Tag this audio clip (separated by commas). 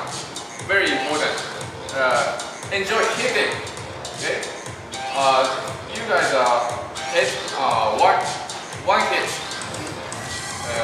Music, Speech